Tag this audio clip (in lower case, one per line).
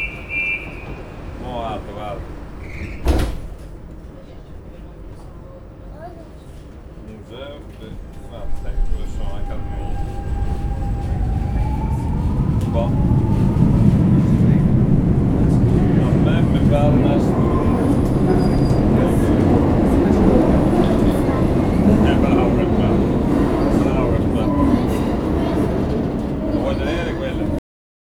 underground
rail transport
vehicle